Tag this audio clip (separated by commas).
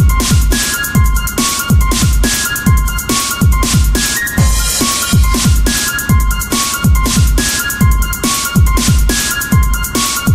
Electronic music, Music, Techno